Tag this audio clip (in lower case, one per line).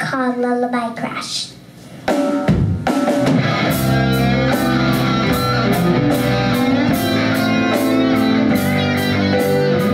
music
speech